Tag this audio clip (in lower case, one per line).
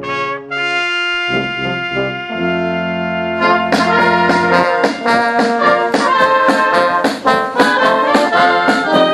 music